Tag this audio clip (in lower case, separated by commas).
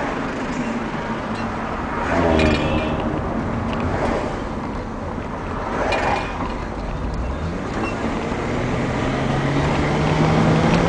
swish